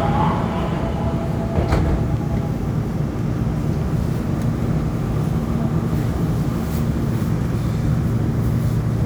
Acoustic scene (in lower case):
subway train